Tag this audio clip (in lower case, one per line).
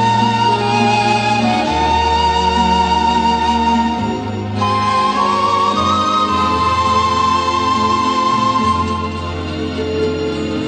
music
wedding music